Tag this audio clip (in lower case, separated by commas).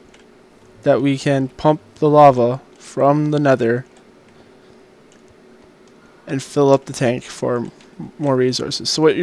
speech